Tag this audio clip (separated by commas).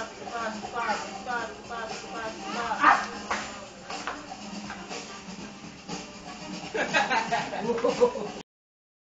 Speech, Music